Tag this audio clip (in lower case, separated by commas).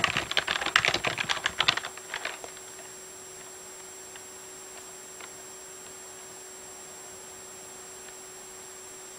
computer keyboard, typing